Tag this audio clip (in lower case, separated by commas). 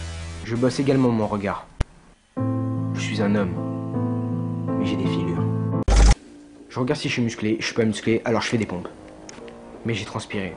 speech, music